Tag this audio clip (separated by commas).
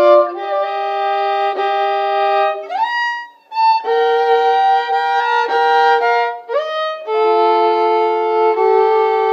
Music, Violin, Bowed string instrument, Musical instrument